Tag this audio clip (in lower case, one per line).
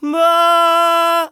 singing
human voice
male singing